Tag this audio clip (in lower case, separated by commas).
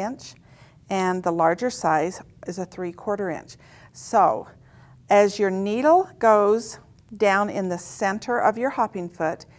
speech